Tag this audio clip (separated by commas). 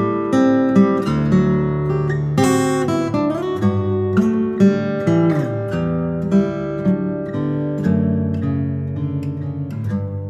Guitar, Music